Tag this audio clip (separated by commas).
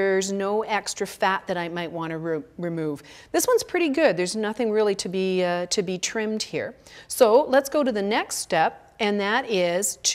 Speech